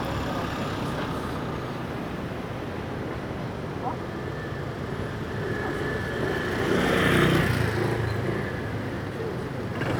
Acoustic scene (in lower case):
street